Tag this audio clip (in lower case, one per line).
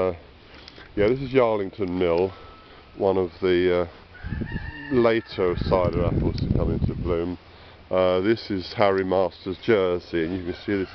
speech